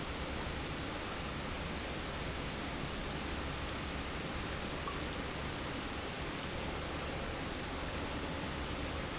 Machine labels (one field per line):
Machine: pump